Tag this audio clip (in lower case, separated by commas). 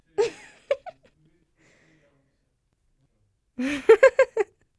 laughter, human voice